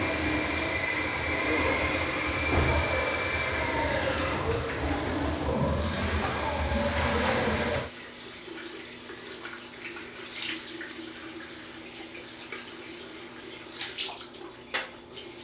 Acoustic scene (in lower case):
restroom